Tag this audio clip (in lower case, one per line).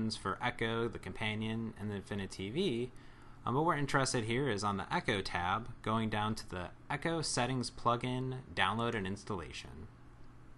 speech